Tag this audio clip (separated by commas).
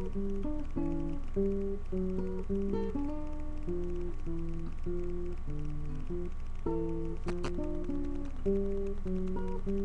Plucked string instrument, Music, Guitar, Musical instrument, Acoustic guitar